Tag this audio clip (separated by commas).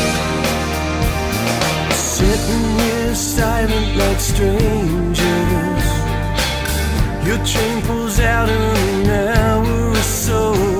Music